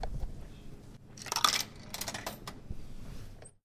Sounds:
coin (dropping)
home sounds

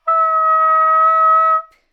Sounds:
woodwind instrument
music
musical instrument

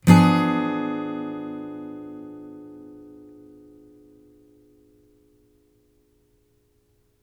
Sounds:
acoustic guitar
plucked string instrument
musical instrument
music
strum
guitar

